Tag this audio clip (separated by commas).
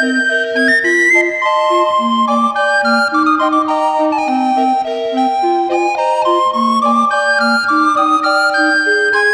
Music